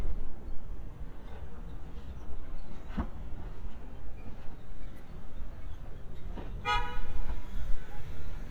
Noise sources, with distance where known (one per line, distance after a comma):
car horn, near